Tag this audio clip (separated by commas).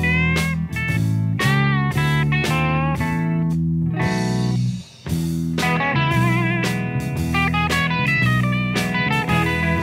Music, Bass guitar